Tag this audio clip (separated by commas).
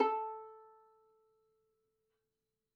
Musical instrument, Music, Bowed string instrument